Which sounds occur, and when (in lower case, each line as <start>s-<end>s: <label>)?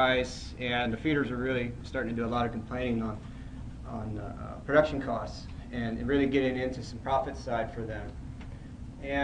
0.0s-0.3s: male speech
0.0s-9.2s: background noise
0.5s-1.7s: male speech
1.8s-3.2s: male speech
3.8s-4.3s: male speech
4.6s-5.3s: male speech
5.7s-8.1s: male speech